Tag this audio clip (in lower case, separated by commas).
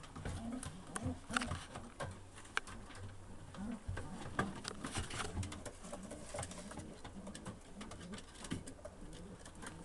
bird vocalization, bird, coo, dove